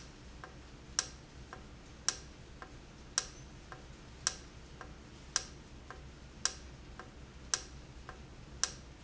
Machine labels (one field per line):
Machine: valve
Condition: normal